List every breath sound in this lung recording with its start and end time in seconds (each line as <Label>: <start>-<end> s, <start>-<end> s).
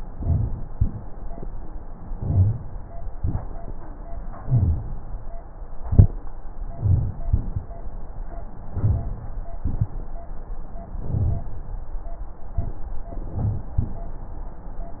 Inhalation: 0.00-0.70 s, 2.07-2.77 s, 4.43-5.01 s, 6.63-7.22 s, 8.65-9.33 s, 10.98-11.57 s, 13.13-13.72 s
Exhalation: 0.74-1.33 s, 3.10-3.68 s, 5.79-6.16 s, 7.24-7.83 s, 9.62-10.20 s
Crackles: 0.04-0.62 s, 0.70-0.99 s, 2.11-2.70 s, 3.11-3.48 s, 4.42-4.83 s, 5.79-6.16 s, 6.76-7.16 s, 7.28-7.64 s, 8.76-9.12 s, 10.98-11.57 s, 13.13-13.72 s